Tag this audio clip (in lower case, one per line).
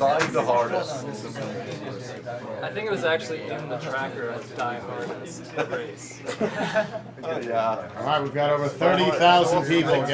speech